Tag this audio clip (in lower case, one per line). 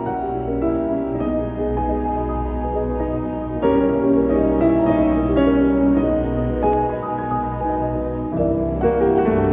piano